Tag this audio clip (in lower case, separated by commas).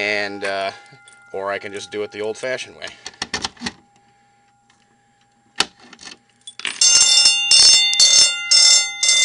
speech, fire alarm